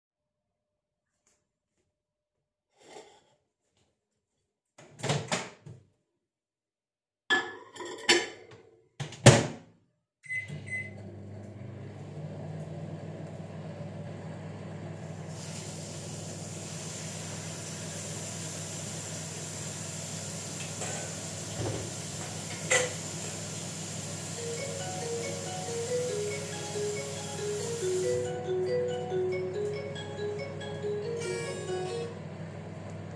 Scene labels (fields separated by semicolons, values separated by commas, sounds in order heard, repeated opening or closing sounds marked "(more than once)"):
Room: kitchen; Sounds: cutlery and dishes, microwave, running water, phone ringing